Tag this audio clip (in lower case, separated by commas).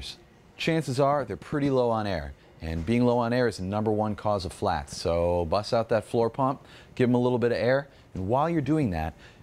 speech